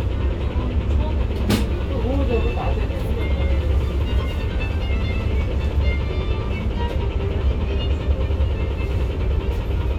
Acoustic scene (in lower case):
bus